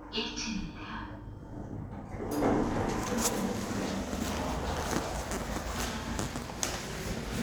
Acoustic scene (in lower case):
elevator